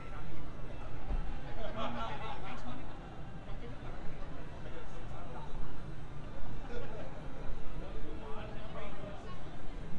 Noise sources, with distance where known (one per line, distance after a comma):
person or small group talking, near